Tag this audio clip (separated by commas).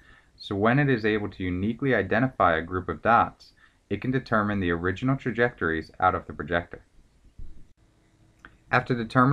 Speech